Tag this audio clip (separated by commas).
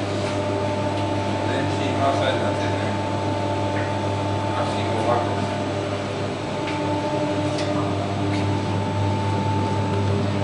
Speech